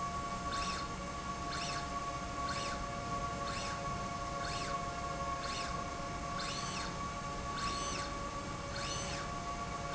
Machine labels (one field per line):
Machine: slide rail